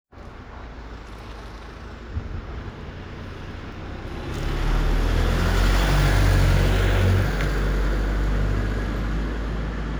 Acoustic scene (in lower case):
residential area